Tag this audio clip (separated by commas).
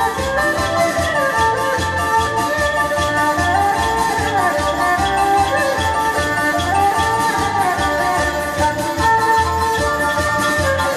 Dance music, Traditional music, Music